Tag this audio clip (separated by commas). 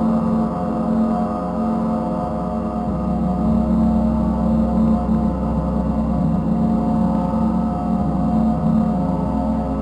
Gong